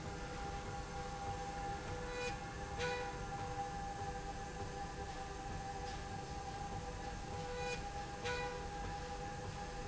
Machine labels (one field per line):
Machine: slide rail